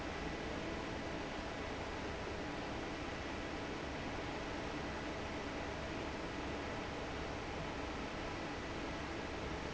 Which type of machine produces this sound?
fan